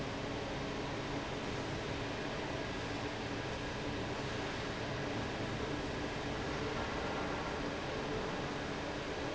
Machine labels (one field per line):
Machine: fan